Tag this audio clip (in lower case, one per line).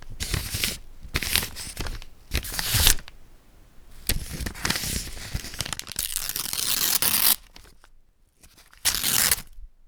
tearing